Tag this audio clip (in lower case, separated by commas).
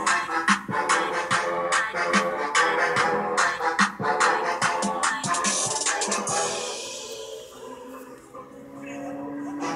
music